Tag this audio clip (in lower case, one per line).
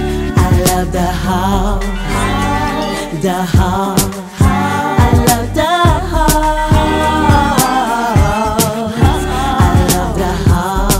singing
music